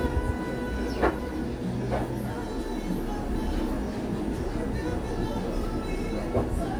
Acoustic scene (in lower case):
cafe